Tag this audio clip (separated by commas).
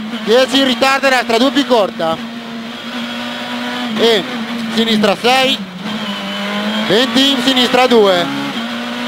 Speech, Motor vehicle (road), Car, Vehicle